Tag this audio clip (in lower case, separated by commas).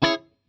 music, guitar, plucked string instrument, musical instrument